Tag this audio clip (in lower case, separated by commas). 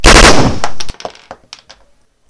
gunshot, explosion